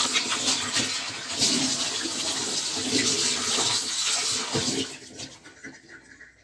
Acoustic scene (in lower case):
kitchen